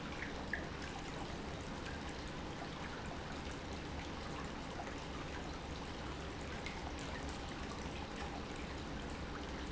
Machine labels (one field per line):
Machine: pump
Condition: normal